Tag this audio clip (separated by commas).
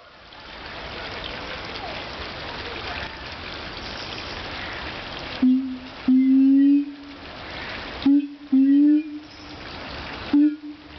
gibbon howling